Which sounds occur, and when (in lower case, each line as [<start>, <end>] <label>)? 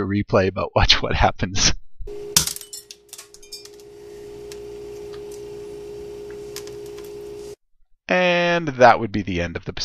[0.00, 1.70] man speaking
[0.00, 9.84] background noise
[2.03, 7.53] mechanisms
[2.30, 3.88] generic impact sounds
[4.46, 4.65] generic impact sounds
[4.93, 5.43] generic impact sounds
[6.44, 7.08] generic impact sounds
[8.04, 9.84] man speaking